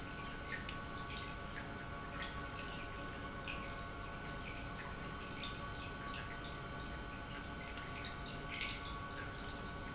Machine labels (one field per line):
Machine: pump